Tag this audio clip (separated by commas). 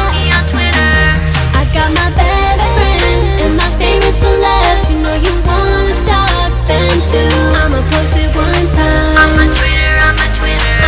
Pop music, Music